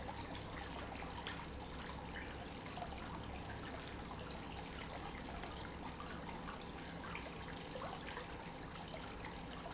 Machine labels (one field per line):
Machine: pump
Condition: normal